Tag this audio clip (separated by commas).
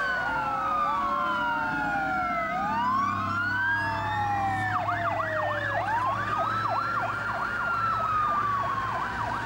fire truck (siren)